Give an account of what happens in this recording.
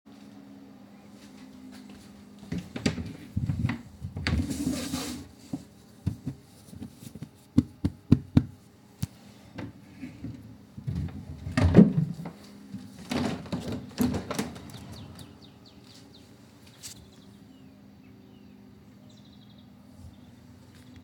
I open the door and go to the toilet to flush it.